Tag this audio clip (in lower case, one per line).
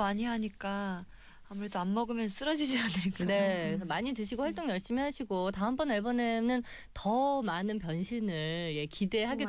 speech